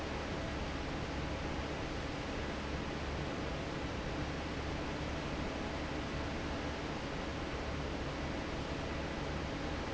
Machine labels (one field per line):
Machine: fan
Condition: normal